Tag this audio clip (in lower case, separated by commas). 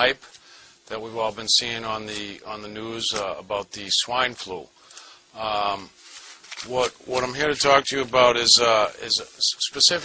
speech